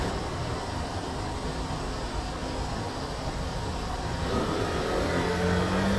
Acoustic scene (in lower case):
street